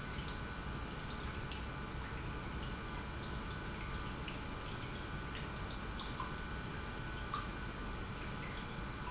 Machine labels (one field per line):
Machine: pump